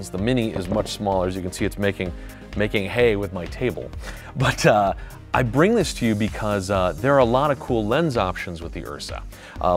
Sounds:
speech, music

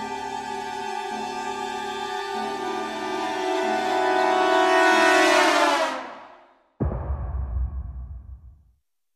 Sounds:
music

